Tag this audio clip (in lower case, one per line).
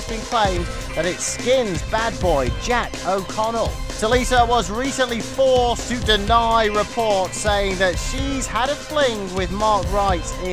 speech
music